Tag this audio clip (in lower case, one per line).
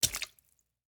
liquid
splash